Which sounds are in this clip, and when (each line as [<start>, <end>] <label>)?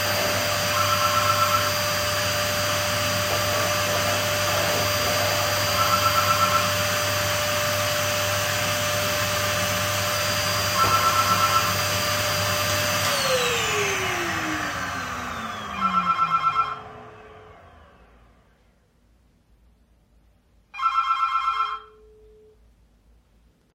[0.00, 18.09] vacuum cleaner
[0.63, 1.92] phone ringing
[5.57, 6.96] phone ringing
[10.57, 11.85] phone ringing
[15.59, 16.82] phone ringing
[20.65, 21.90] phone ringing